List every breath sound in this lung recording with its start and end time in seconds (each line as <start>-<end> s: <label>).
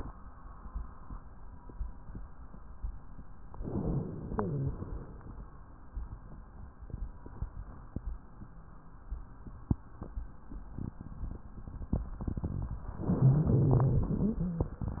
3.59-4.71 s: inhalation
4.23-4.80 s: wheeze
4.71-5.62 s: exhalation
13.07-14.19 s: inhalation
13.26-14.18 s: rhonchi
14.19-14.83 s: wheeze
14.19-15.00 s: exhalation